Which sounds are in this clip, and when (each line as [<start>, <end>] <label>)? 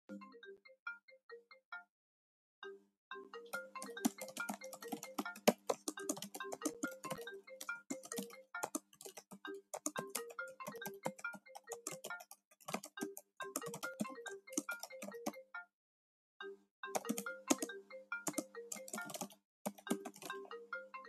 [0.07, 21.08] phone ringing
[3.77, 21.08] keyboard typing